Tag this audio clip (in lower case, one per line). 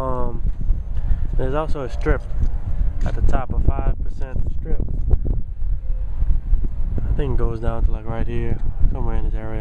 speech